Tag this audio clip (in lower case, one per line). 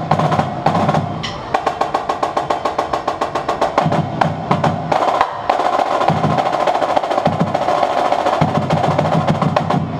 music
percussion
drum roll